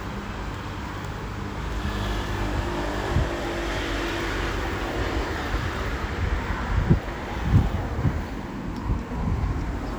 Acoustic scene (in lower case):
street